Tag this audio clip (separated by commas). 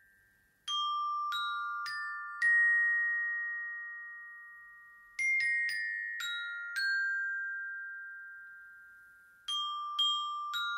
playing glockenspiel